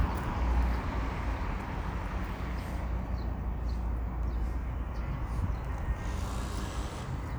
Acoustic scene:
street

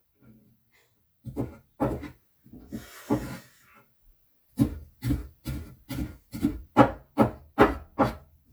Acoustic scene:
kitchen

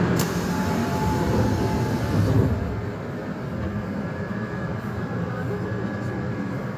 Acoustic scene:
subway train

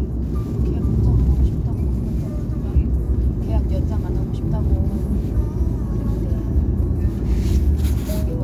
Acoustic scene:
car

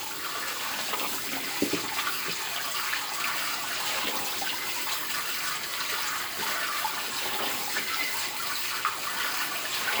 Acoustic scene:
kitchen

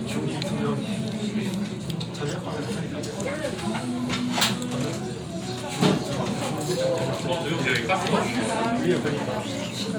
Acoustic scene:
restaurant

